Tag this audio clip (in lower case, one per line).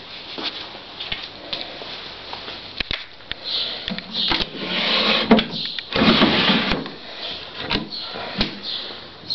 drawer open or close
cupboard open or close